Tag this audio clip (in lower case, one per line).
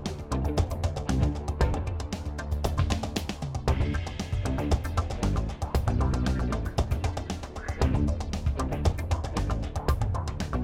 music